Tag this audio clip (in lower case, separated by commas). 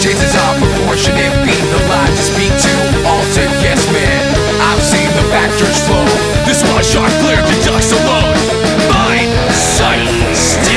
music, exciting music